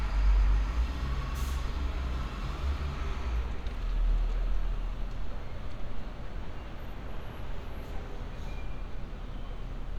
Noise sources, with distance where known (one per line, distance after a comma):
large-sounding engine